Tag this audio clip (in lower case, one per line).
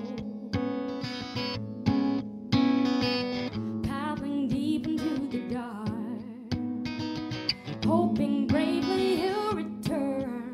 music